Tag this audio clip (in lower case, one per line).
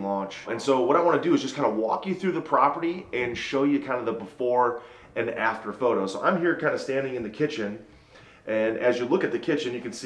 speech